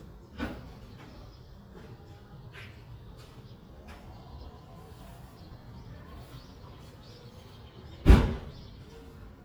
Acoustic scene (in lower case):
residential area